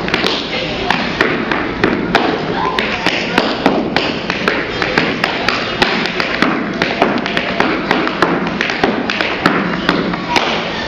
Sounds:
Tap, Thump, Speech

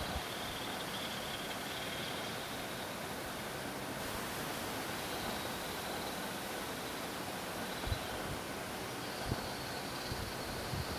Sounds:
Duck

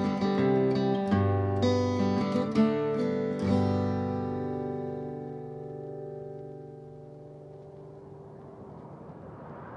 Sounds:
Acoustic guitar, Music

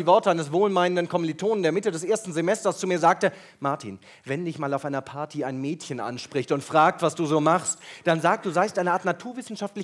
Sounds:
Speech

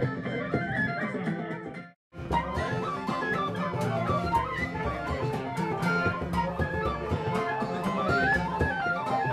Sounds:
woodwind instrument, Flute

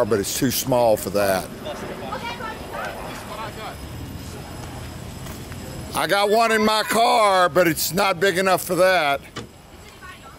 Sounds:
Speech

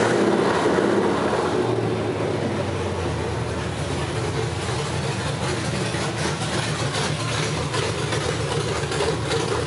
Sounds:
Engine, Idling, Vehicle

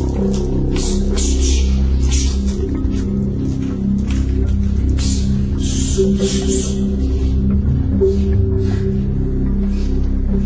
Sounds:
Music

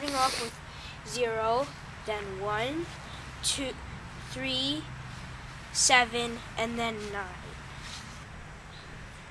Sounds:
Speech

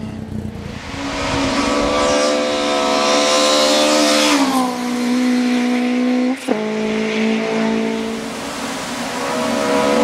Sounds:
Race car, Motor vehicle (road), Car, Vehicle, Tire squeal

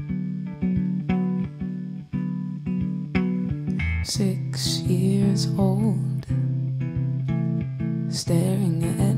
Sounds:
Music, Bass guitar

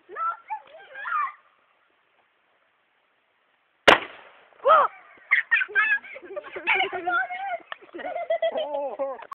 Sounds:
Speech

